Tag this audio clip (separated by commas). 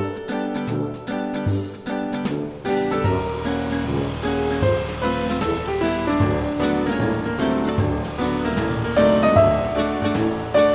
Music